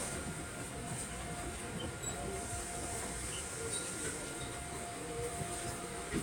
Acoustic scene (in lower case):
subway train